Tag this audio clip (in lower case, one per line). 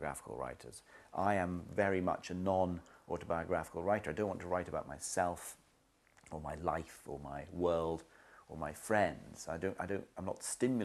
speech